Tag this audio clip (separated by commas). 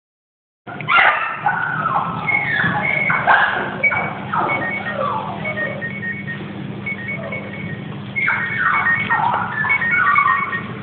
Animal